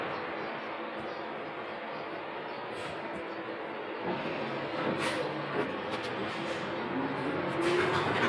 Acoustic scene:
bus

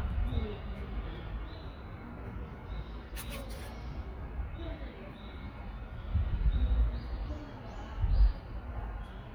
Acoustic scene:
residential area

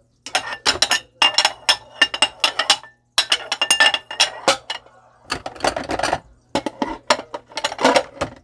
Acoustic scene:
kitchen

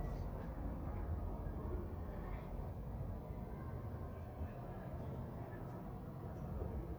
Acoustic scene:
residential area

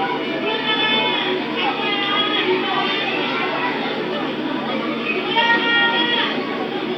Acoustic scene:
park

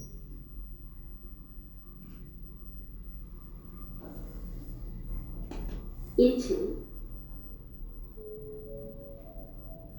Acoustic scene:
elevator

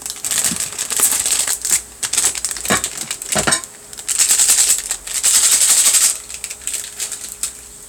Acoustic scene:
kitchen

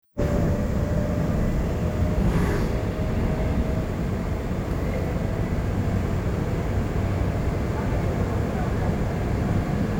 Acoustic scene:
subway train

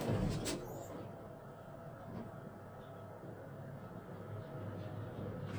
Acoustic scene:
elevator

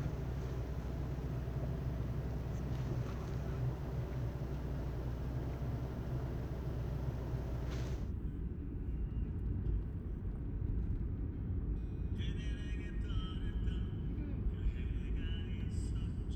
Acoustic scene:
car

